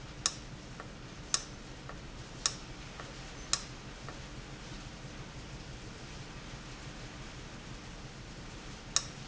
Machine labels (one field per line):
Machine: valve